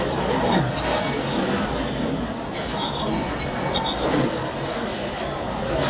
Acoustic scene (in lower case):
restaurant